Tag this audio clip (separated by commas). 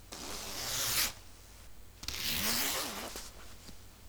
home sounds, Zipper (clothing)